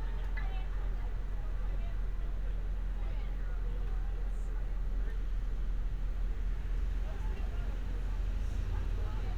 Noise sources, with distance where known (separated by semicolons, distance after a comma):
person or small group talking